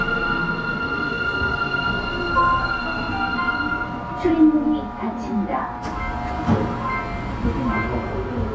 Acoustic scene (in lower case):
subway train